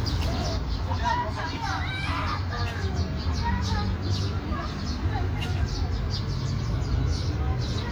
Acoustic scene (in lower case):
park